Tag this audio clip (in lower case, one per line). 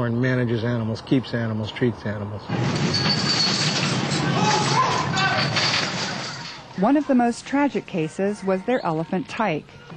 speech